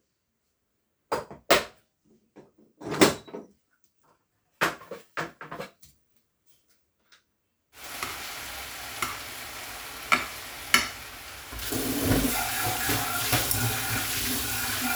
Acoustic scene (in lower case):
kitchen